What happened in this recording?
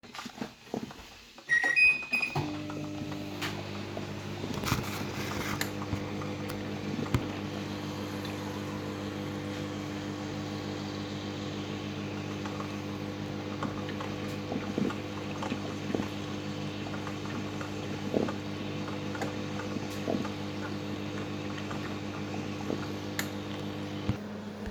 Coffee machine is already on. Then I turn on the microwave.